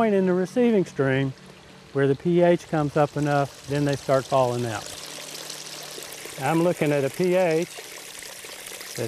A person talks as a stream of water flows by at moderate speed